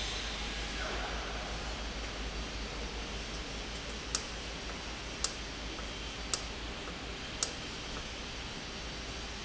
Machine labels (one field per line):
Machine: valve